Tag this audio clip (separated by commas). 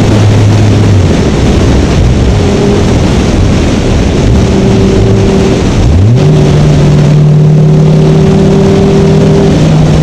Motor vehicle (road), Car, Vehicle